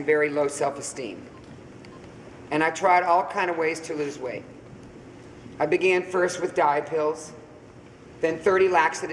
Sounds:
speech, man speaking, narration

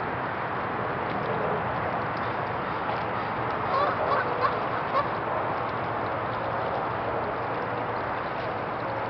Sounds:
animal

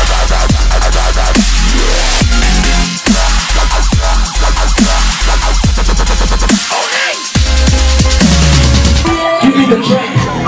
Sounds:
music, dubstep, singing

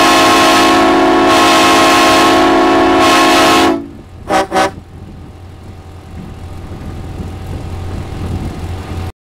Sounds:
vehicle, car

